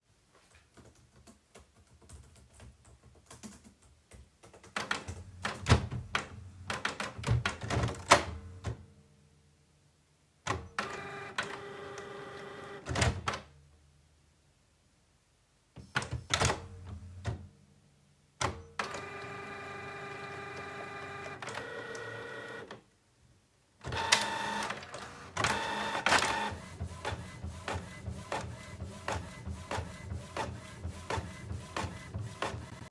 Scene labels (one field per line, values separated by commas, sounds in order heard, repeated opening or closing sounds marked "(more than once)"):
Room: office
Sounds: keyboard typing